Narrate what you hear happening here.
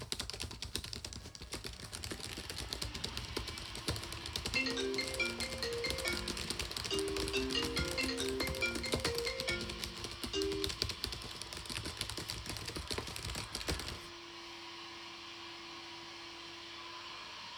I typed on my laptop keyboard, then someone started vacuuming outside the office, then a phone rang.